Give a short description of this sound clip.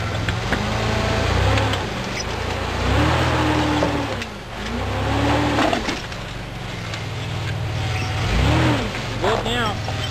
A vehicle engine is revving up and a man speaks